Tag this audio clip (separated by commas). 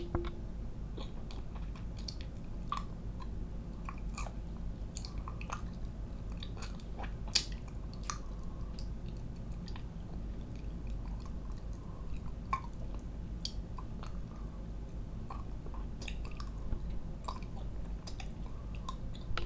Chewing